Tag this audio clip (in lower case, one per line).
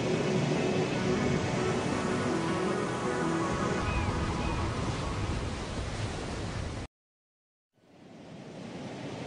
vehicle
boat
motorboat
music